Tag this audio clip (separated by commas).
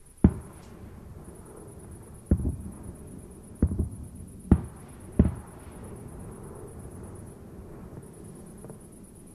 Fireworks, Explosion